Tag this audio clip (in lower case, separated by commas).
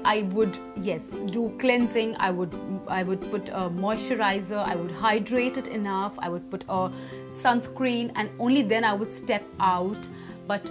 speech, music